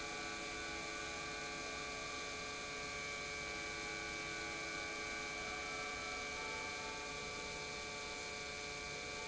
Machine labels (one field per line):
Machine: pump